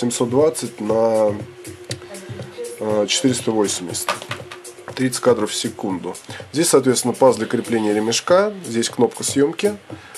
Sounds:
Speech, Music

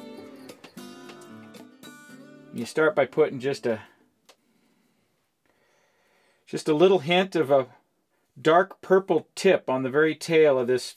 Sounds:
Music, Speech

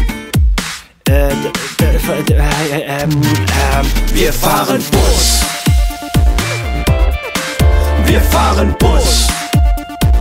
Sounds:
Music

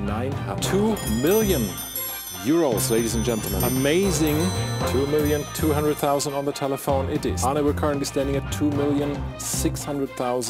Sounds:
Music, Speech

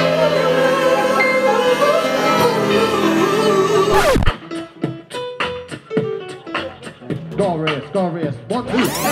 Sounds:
Beatboxing, Music, Singing

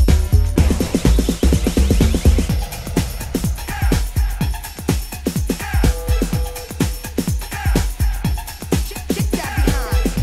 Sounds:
Music

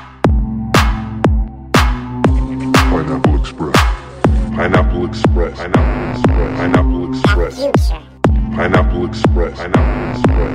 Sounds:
Music, Throbbing, Speech

